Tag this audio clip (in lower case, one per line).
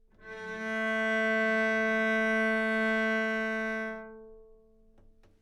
musical instrument
bowed string instrument
music